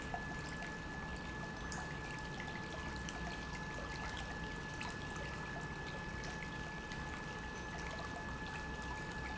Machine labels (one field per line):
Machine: pump